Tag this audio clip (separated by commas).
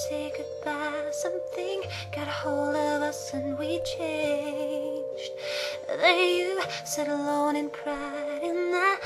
Music, Female singing